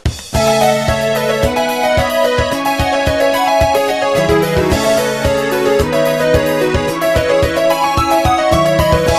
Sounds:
Music, Video game music

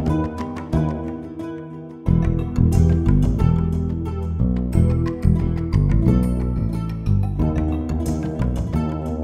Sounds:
Music

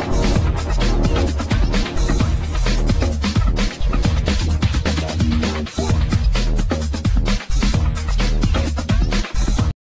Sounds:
Music

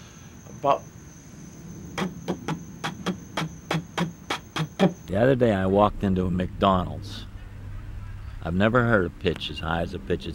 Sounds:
Speech

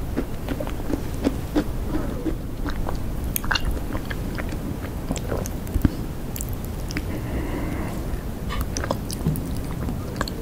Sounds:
people slurping

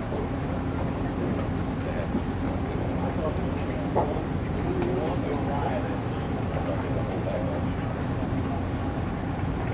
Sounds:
Speech, outside, rural or natural

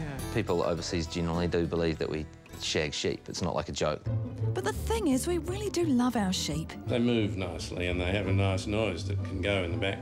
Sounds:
Music, Speech

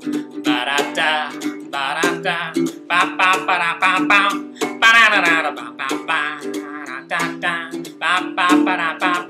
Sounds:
Male singing, Music

